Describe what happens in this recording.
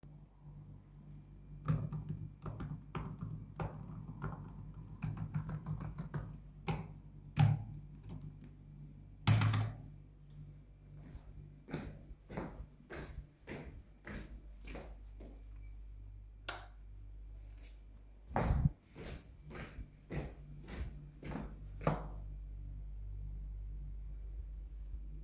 A person types on keyboard, then walks to the switch and turns off the light, and walks away.